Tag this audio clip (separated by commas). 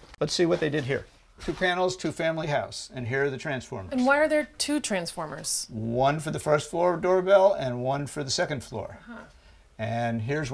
Speech